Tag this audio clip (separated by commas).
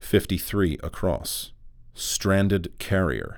Speech, Male speech, Human voice